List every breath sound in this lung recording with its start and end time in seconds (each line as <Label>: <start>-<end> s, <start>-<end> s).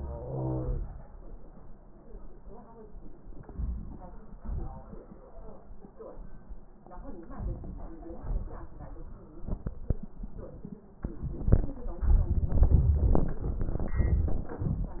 Wheeze: 0.00-0.81 s